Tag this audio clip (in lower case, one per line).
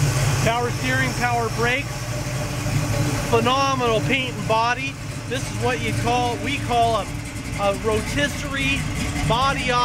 speech